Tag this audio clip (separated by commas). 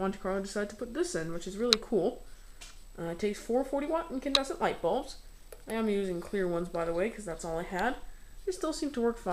Speech